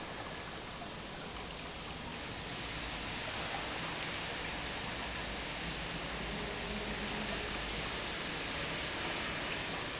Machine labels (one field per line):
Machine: pump